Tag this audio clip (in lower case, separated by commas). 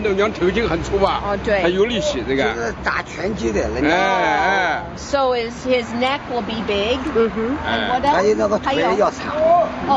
speech